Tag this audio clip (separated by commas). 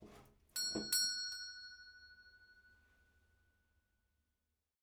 Alarm, home sounds, Door, Doorbell